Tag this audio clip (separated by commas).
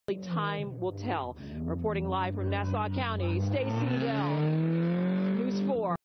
Speech, Skidding